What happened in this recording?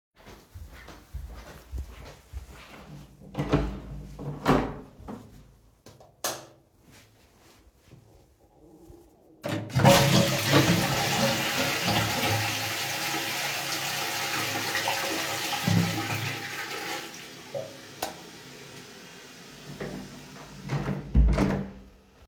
I entered the toilet, turned on the light, flushed the toilet, and then turned off the light